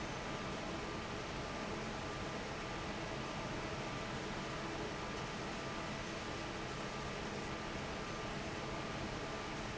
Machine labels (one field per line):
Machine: fan